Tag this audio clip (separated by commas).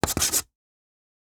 Writing, home sounds